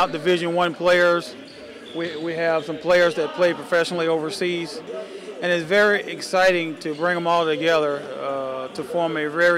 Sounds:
speech

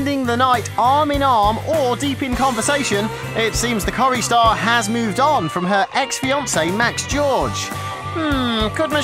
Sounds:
speech
music

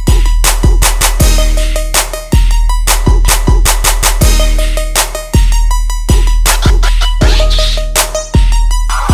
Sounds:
music

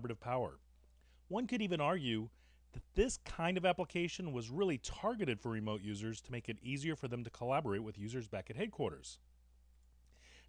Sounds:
speech

